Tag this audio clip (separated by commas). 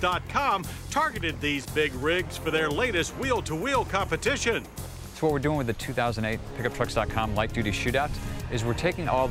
Music, Speech